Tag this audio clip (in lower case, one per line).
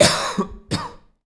respiratory sounds
cough